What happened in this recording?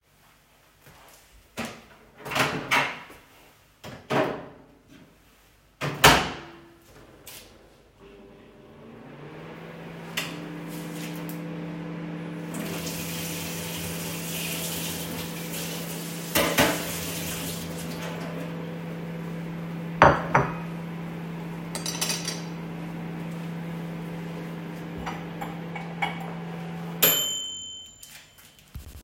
I opened the microwave put a plate of food in there closed it and started it. While it was running I run the water washed down a spoon and a plate and put them on the table. Then the microwave finished.